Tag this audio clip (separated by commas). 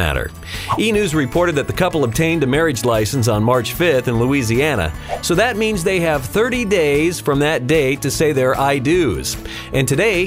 Music, Speech